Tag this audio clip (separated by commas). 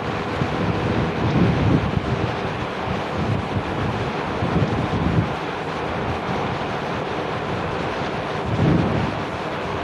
Mechanical fan